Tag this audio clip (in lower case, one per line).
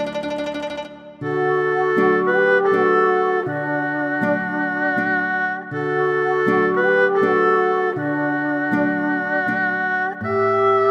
playing erhu